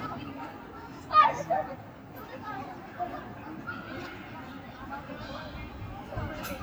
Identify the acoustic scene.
residential area